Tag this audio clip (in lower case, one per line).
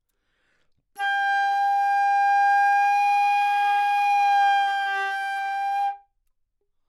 music
musical instrument
woodwind instrument